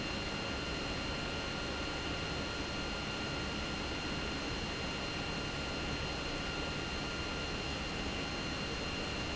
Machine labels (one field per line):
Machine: pump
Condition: abnormal